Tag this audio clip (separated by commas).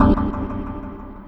Music, Musical instrument, Organ, Keyboard (musical)